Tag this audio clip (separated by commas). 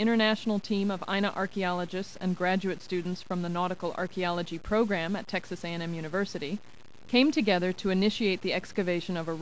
Speech